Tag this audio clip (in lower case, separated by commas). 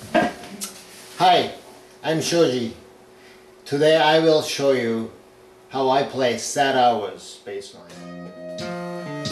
music, speech, musical instrument, plucked string instrument, strum, guitar